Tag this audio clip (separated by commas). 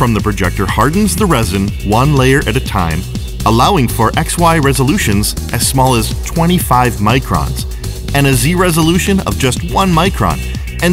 Speech, Music